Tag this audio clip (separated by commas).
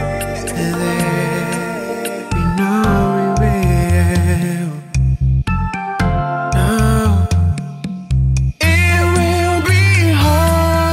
Jazz, Music, Music of Africa